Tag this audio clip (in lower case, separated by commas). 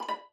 music, bowed string instrument, musical instrument